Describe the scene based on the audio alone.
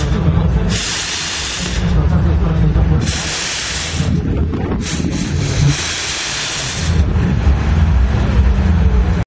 Spraying in the wind with speech in the background